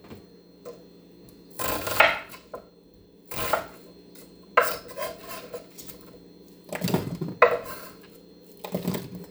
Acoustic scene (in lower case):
kitchen